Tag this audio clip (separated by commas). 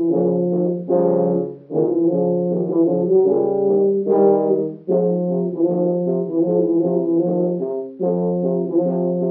Music